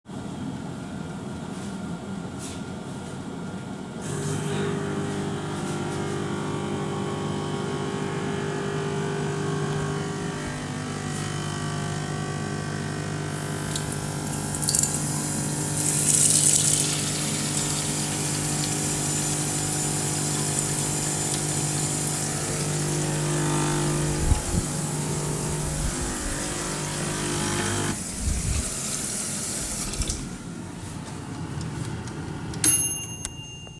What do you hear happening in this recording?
The phone was fixed on the kitchen counter. The air fryer was on and I started the coffee machine. While both were running I opened the water tap and washed my hands. I then stopped the coffee machine, the water tap was turned off, and turned off the air fryer.